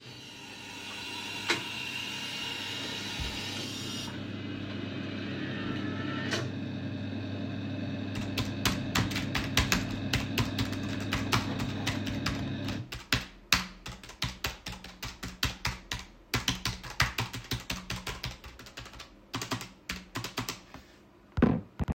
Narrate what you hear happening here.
I put the coffe machine on and after typed on my keyboard. The sound of the coffee machine brewing and the keyboard typing were captured in the recording without any background noise.